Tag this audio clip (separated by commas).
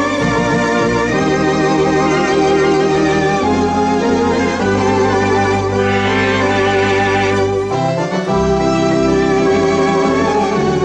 Hammond organ, Organ